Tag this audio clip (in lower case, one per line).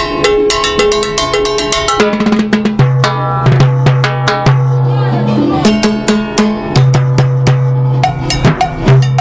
playing timbales